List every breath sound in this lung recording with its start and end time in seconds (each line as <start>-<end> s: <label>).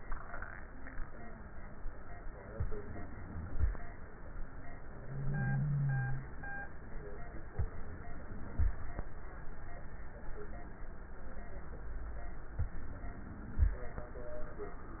2.48-3.73 s: inhalation
7.51-8.76 s: inhalation
12.54-13.79 s: inhalation